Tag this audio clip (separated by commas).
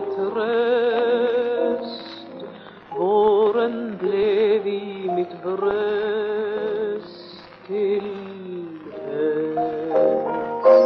Music, Middle Eastern music